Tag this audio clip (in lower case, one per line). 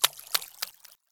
liquid
splatter